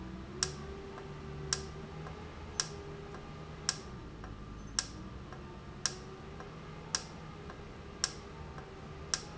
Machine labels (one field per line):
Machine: valve